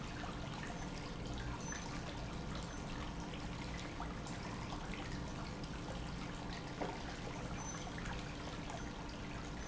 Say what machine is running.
pump